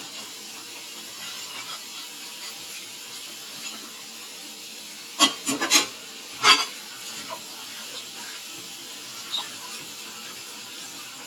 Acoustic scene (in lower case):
kitchen